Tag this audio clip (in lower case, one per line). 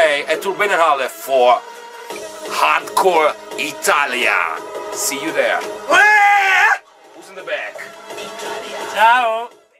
speech
yell
music